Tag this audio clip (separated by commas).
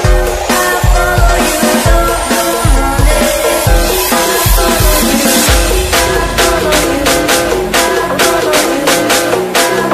Techno, Music